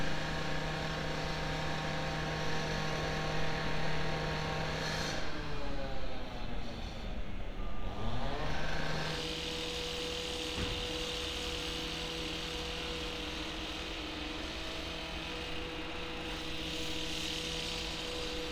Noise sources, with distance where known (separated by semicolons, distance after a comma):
large rotating saw